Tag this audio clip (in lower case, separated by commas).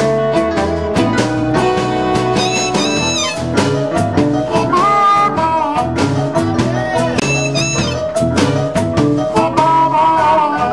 musical instrument, guitar, music, blues